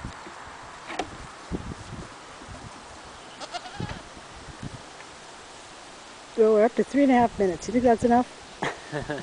Animal bleating, woman speaking with a man laughing followed by the animal bleating again in the background